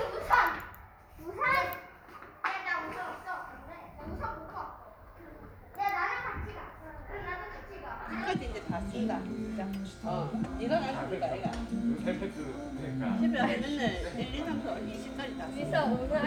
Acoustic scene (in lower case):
crowded indoor space